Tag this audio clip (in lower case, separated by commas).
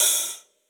hi-hat, percussion, musical instrument, cymbal, music